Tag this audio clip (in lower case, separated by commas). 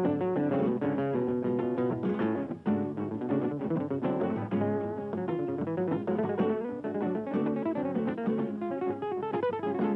musical instrument, acoustic guitar, plucked string instrument, music, guitar